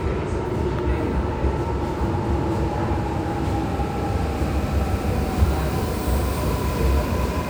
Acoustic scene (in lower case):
subway station